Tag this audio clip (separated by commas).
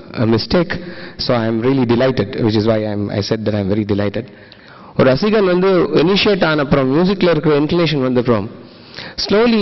Speech